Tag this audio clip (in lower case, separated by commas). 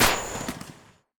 explosion, fireworks